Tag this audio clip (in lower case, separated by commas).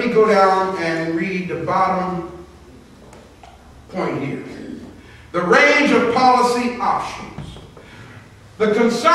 speech